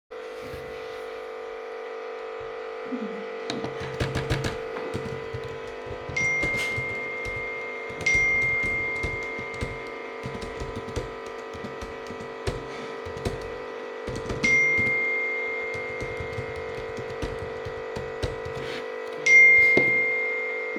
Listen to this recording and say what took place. The coffee machine is working, I am typing on my computer and get phone notifications, I grab my phone at the end